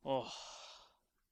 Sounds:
human voice
sigh

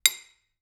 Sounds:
dishes, pots and pans
cutlery
domestic sounds

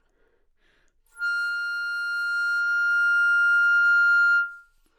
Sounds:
music
wind instrument
musical instrument

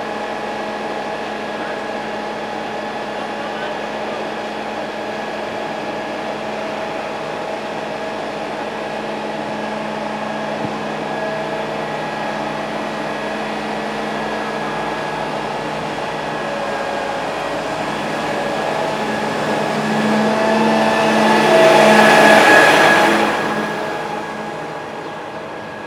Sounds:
vehicle
motor vehicle (road)
truck

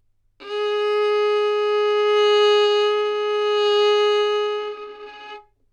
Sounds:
music
bowed string instrument
musical instrument

